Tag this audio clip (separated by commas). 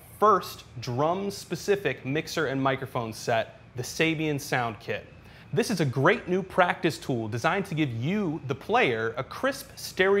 Speech